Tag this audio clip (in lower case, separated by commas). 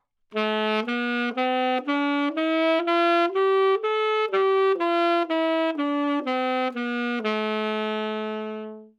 musical instrument, wind instrument, music